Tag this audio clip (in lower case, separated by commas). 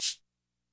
musical instrument, percussion, music, rattle (instrument)